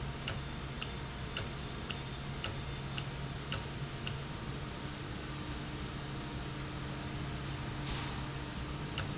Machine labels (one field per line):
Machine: valve